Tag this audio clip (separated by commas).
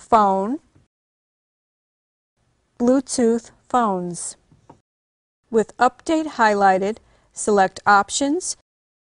Speech